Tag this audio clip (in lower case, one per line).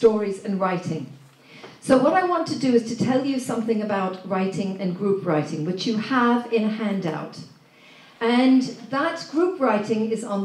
speech